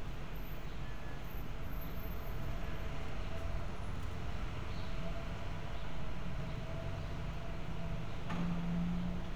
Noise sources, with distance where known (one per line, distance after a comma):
medium-sounding engine